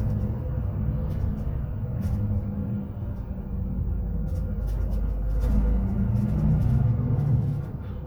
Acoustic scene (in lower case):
bus